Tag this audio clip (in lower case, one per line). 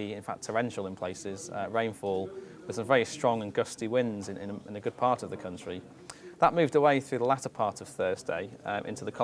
speech